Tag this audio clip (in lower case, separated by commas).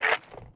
mechanisms